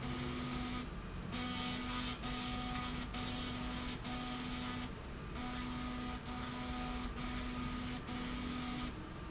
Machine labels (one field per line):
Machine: slide rail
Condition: abnormal